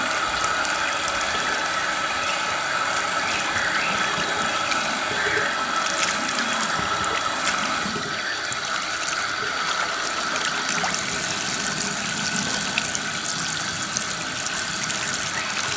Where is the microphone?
in a restroom